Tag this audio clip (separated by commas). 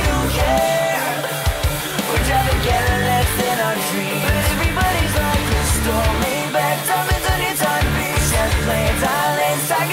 Music